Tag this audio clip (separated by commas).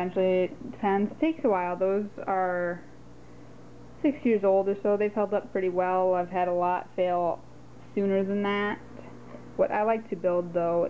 Speech